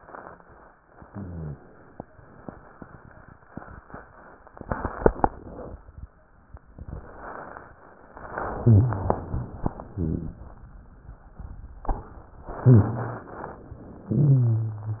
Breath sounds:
1.02-1.60 s: rhonchi
8.28-9.14 s: inhalation
8.54-9.00 s: wheeze
9.90-10.42 s: exhalation
9.90-10.42 s: rhonchi
12.62-13.36 s: wheeze
12.62-13.60 s: inhalation
14.08-15.00 s: exhalation
14.08-15.00 s: wheeze

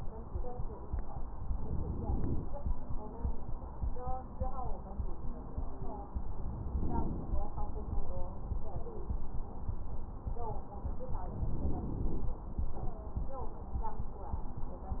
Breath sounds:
1.50-2.48 s: inhalation
6.72-7.47 s: inhalation
11.27-12.33 s: inhalation

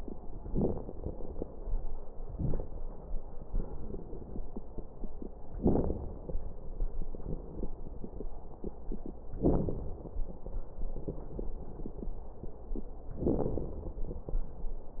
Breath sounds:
0.41-1.57 s: inhalation
0.41-1.57 s: crackles
2.22-2.75 s: exhalation
2.22-2.75 s: crackles
3.43-4.40 s: inhalation
3.75-4.10 s: wheeze
5.61-6.21 s: exhalation
5.61-6.21 s: crackles

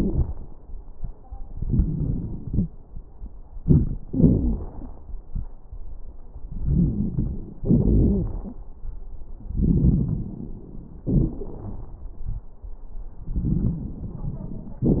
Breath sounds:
1.50-2.44 s: inhalation
1.50-2.44 s: crackles
2.47-2.72 s: exhalation
2.47-2.72 s: wheeze
3.59-3.97 s: inhalation
3.59-3.97 s: crackles
4.07-4.92 s: wheeze
4.07-5.00 s: exhalation
6.47-7.59 s: inhalation
6.47-7.59 s: crackles
7.65-8.63 s: exhalation
7.65-8.63 s: crackles
9.48-11.05 s: inhalation
9.48-11.05 s: crackles
11.11-12.46 s: exhalation
11.11-12.46 s: crackles
13.21-14.82 s: inhalation
13.21-14.82 s: crackles

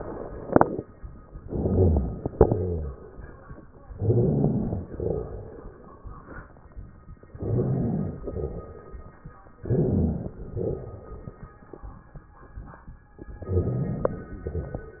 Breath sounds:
1.44-2.30 s: inhalation
1.44-2.30 s: rhonchi
2.35-2.94 s: exhalation
2.35-2.94 s: rhonchi
3.98-4.84 s: inhalation
3.98-4.84 s: rhonchi
4.90-5.49 s: exhalation
7.38-8.20 s: inhalation
7.38-8.20 s: rhonchi
8.24-9.05 s: exhalation
9.66-10.38 s: inhalation
9.66-10.38 s: rhonchi
10.36-11.18 s: exhalation
10.42-11.18 s: rhonchi
13.45-14.44 s: inhalation
13.45-14.44 s: rhonchi

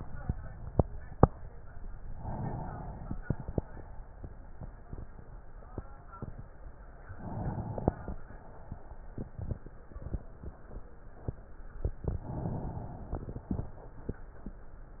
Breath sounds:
2.07-3.17 s: inhalation
3.17-3.84 s: exhalation
7.08-7.96 s: inhalation
7.96-8.74 s: exhalation
12.10-13.47 s: inhalation
13.46-14.24 s: exhalation

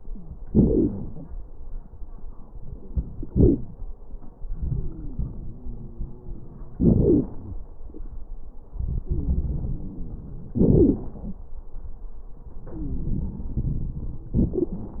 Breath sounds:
0.41-1.26 s: exhalation
0.41-1.26 s: crackles
4.50-6.75 s: inhalation
4.50-6.75 s: wheeze
6.78-7.33 s: exhalation
6.78-7.33 s: crackles
8.76-10.56 s: inhalation
8.76-10.56 s: wheeze
10.58-11.17 s: exhalation
10.58-11.17 s: crackles
12.66-13.19 s: wheeze
12.66-14.25 s: inhalation
14.39-15.00 s: exhalation
14.39-15.00 s: crackles

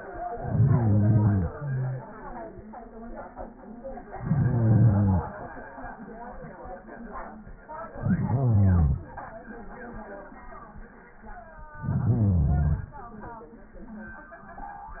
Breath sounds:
0.09-2.11 s: inhalation
4.04-5.45 s: inhalation
7.91-9.18 s: inhalation
11.67-12.94 s: inhalation

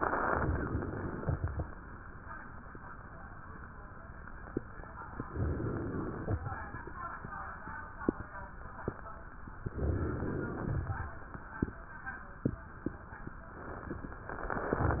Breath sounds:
0.23-1.73 s: inhalation
5.22-6.38 s: inhalation
9.73-10.89 s: inhalation

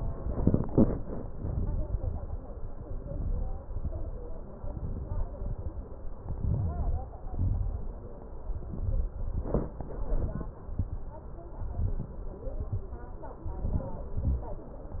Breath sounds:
1.35-2.43 s: inhalation
2.94-3.59 s: inhalation
3.65-4.52 s: exhalation
4.58-5.28 s: inhalation
5.28-6.12 s: exhalation
6.21-7.22 s: inhalation
7.24-8.09 s: exhalation
8.34-9.13 s: inhalation
9.18-9.85 s: exhalation
9.94-10.61 s: inhalation
10.70-11.22 s: exhalation
11.67-12.35 s: inhalation
12.39-13.30 s: exhalation
13.49-14.17 s: inhalation
14.17-14.75 s: exhalation

